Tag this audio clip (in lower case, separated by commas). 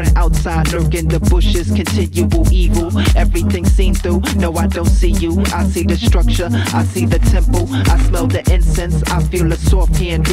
music